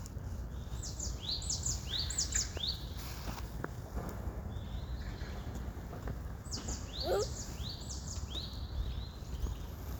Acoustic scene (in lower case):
park